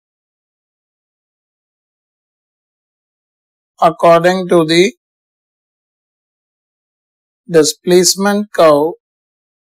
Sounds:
Speech

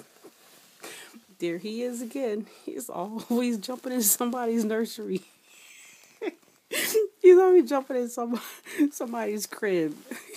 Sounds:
Speech

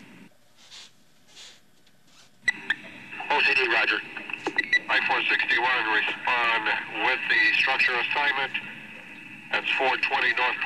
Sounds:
Speech, Radio

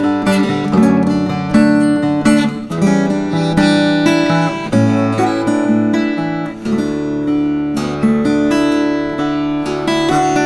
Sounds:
Music, Guitar, Plucked string instrument, Musical instrument

